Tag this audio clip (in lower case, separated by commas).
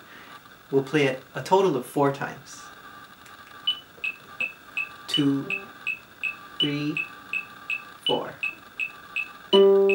speech, plucked string instrument, musical instrument, music, beep, guitar, ukulele